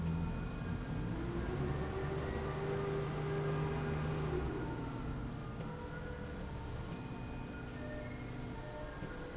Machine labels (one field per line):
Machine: slide rail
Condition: normal